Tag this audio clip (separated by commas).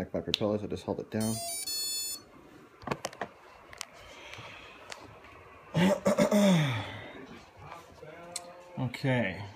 inside a large room or hall, Speech